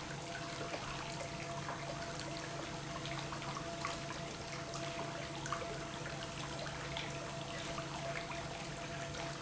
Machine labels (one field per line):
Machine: pump